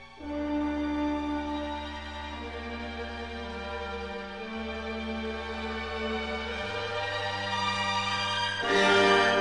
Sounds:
music

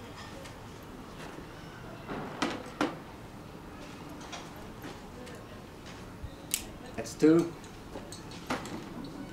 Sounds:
speech, outside, urban or man-made

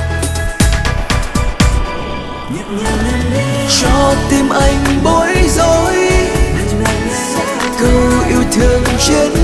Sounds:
music of asia, music, pop music

